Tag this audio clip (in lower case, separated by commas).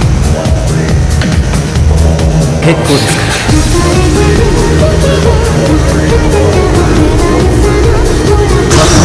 music